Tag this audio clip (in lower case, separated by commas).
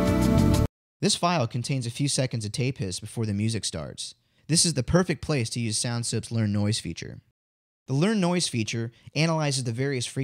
speech, music